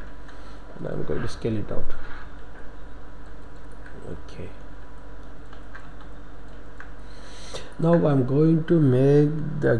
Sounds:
Speech

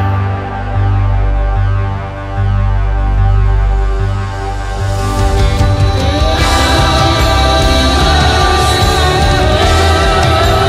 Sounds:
Singing, Music

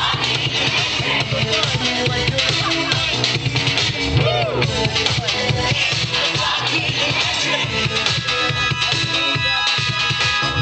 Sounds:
Musical instrument, Music, Speech

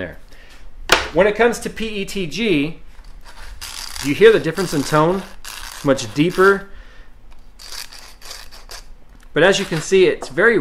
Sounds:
Speech

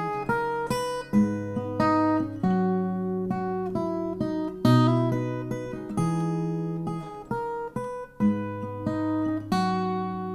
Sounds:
Guitar, Musical instrument, Acoustic guitar, Plucked string instrument

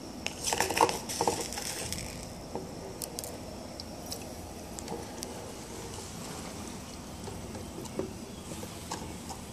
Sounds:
inside a small room

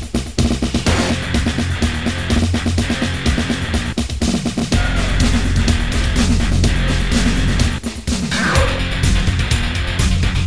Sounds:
Music, Background music

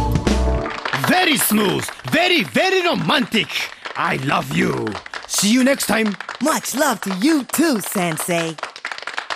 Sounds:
Music, Speech

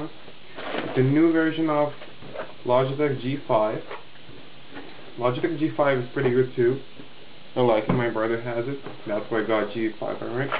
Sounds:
Speech

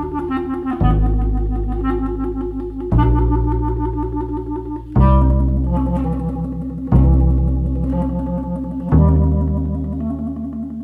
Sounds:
Clarinet, Wind instrument, Musical instrument, Theremin, Music

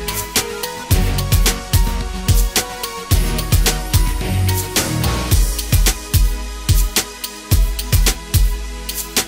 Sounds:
Music

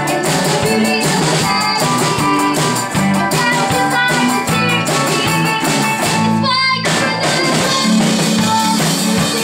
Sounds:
Music, Rock and roll

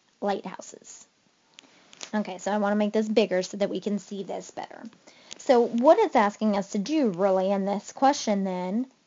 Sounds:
Speech

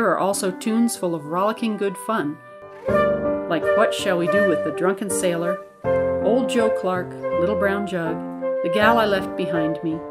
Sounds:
Speech, Music, Flute

